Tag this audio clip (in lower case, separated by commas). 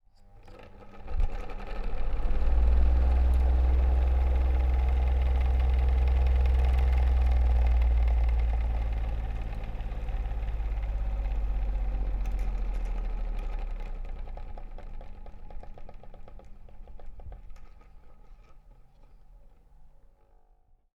mechanical fan, mechanisms